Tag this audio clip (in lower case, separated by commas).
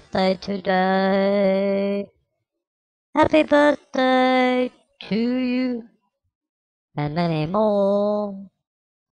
speech